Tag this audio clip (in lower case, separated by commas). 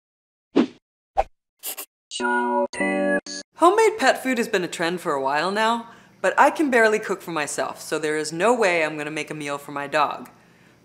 speech, inside a small room, music